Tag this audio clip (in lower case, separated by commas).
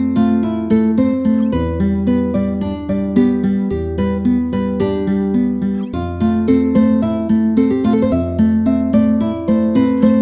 music